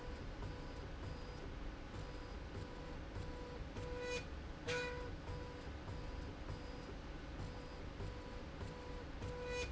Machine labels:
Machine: slide rail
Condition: normal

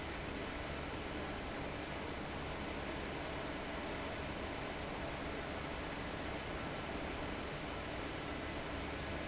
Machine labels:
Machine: fan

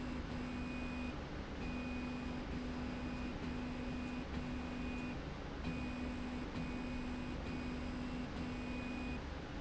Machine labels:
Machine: slide rail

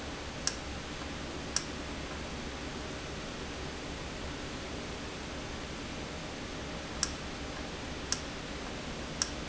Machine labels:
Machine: valve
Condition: normal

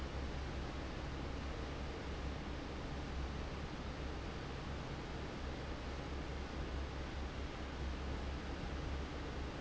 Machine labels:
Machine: fan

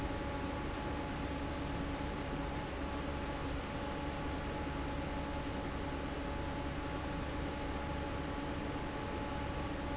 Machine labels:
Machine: fan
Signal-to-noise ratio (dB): -6 dB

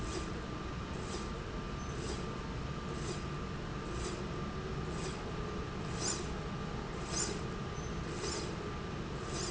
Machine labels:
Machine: slide rail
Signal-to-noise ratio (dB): -6 dB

